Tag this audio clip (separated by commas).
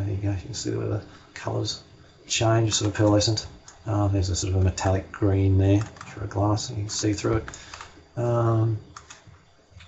Speech